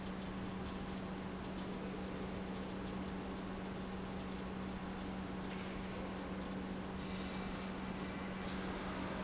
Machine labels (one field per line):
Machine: pump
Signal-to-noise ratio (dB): 0 dB